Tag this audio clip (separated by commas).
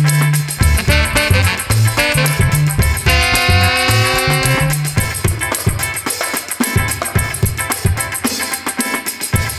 Music